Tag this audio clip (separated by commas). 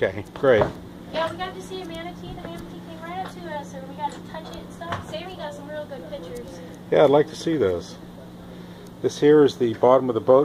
Boat, Speech